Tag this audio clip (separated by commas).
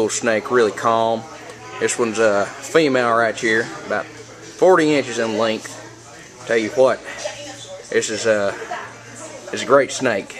inside a large room or hall, Speech